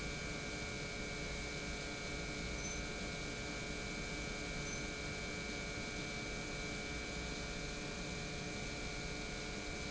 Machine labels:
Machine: pump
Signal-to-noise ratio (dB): 0 dB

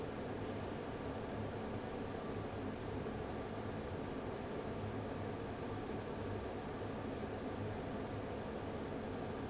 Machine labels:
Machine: fan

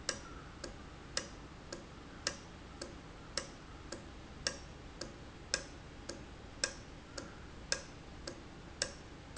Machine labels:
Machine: valve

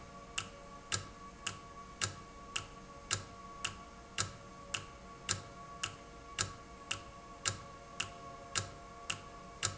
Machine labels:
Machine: valve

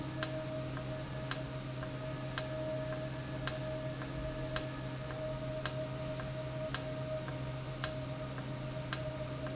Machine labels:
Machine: valve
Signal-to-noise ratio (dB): -6 dB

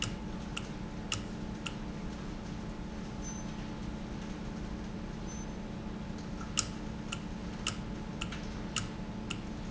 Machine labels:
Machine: valve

